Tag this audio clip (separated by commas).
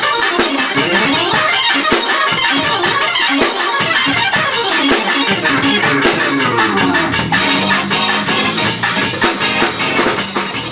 Music